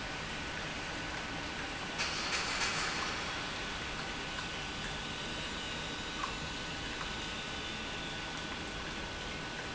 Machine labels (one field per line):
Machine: pump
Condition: normal